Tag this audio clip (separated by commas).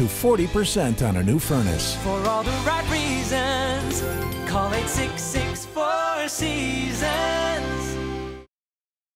Speech, Music